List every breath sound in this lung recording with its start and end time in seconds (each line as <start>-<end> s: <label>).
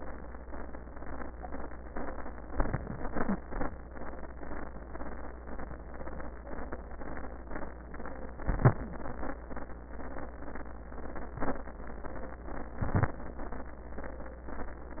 8.46-8.80 s: inhalation
11.37-11.71 s: inhalation
12.86-13.20 s: inhalation